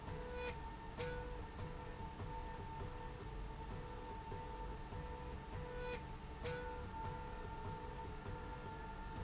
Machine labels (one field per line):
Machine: slide rail